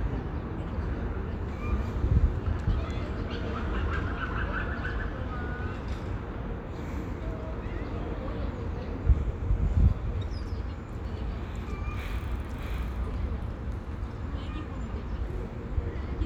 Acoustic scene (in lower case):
park